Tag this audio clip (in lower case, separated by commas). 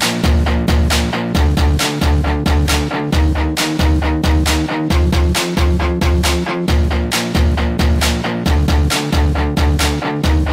music